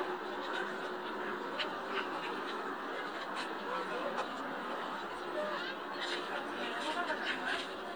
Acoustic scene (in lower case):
park